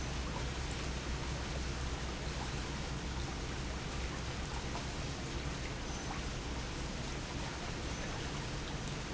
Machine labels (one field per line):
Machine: pump